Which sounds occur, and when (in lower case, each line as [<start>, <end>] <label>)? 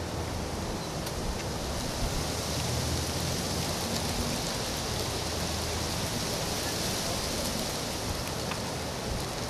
[0.00, 9.45] noise
[0.75, 0.93] bird song
[0.98, 1.12] generic impact sounds
[1.34, 1.44] generic impact sounds
[2.56, 2.73] generic impact sounds
[3.90, 4.03] generic impact sounds
[6.66, 6.76] bird song
[7.02, 7.41] speech
[8.46, 8.65] generic impact sounds